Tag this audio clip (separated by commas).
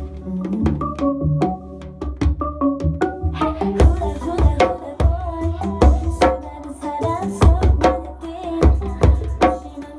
playing bongo